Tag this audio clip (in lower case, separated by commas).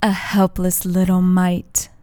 human voice, woman speaking, speech